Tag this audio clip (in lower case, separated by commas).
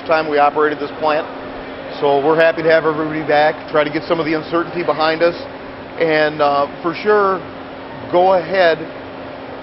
vehicle, speech